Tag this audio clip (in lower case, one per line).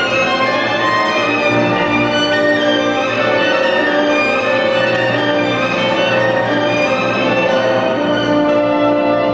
music
musical instrument
fiddle